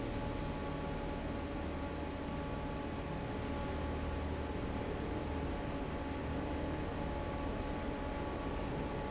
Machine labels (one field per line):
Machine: fan